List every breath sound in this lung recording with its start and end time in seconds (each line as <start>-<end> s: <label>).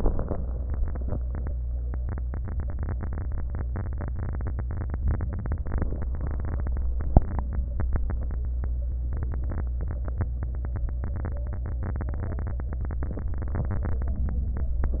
14.13-14.77 s: inhalation